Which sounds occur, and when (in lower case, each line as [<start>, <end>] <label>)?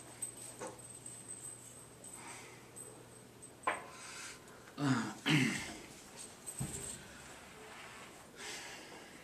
[0.00, 9.23] background noise
[0.53, 0.90] generic impact sounds
[1.98, 2.81] breathing
[3.57, 3.78] generic impact sounds
[3.62, 4.38] breathing
[4.68, 5.10] throat clearing
[5.22, 5.74] throat clearing
[6.50, 6.79] generic impact sounds
[6.87, 7.60] breathing
[8.38, 9.23] breathing